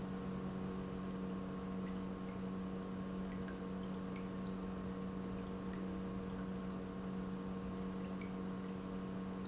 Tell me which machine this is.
pump